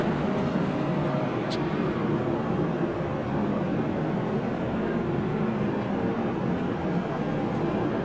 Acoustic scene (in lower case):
subway train